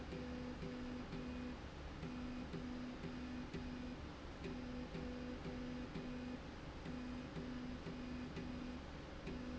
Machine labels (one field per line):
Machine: slide rail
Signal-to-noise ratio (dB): 6 dB